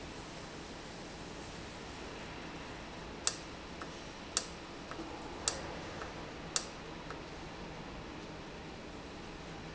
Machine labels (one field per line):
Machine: valve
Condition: normal